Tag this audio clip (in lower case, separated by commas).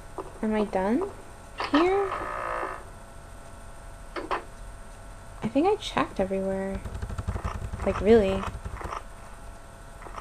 speech